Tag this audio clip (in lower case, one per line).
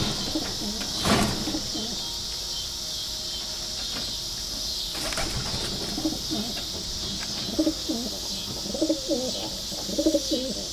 pigeon
coo
bird
domestic animals